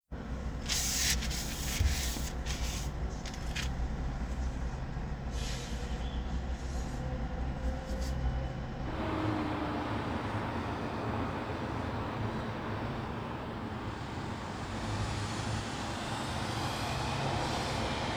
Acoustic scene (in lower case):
residential area